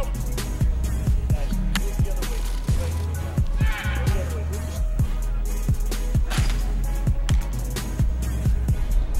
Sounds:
music, speech

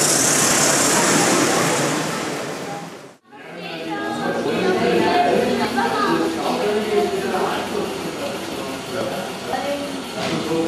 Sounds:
speech, vroom

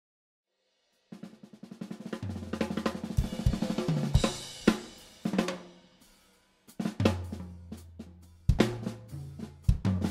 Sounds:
bass drum, drum kit, drum, percussion, drum roll, rimshot, snare drum

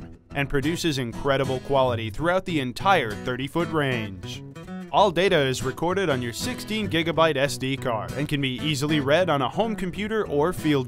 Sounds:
speech, music

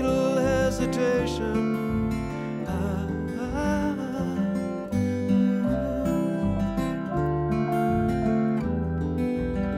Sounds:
acoustic guitar

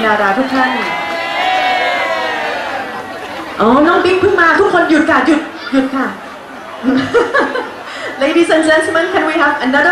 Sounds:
woman speaking, speech, crowd

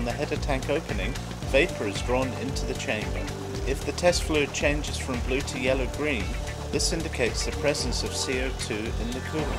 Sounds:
speech, music

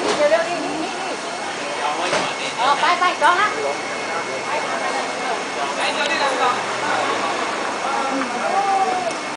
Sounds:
speech

